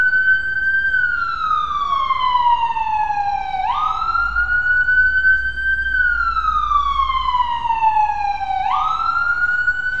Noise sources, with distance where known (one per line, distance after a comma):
siren, near
unidentified human voice, far